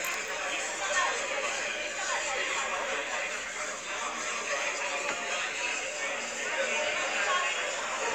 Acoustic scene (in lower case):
crowded indoor space